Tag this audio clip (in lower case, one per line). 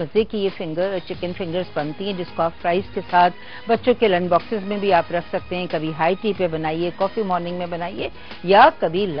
music
speech